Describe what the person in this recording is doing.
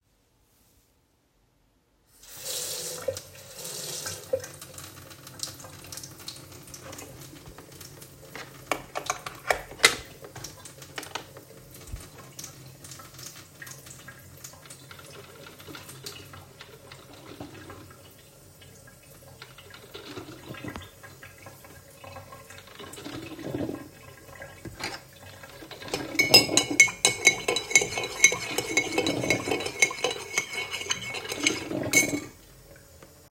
I turned the tap water on and adjusted it to run slower. Then I plugged in the coffee machine and pressed the button. After that, I stirred a spoon in a cup.